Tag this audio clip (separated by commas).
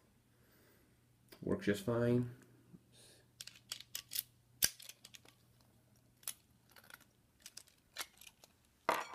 Speech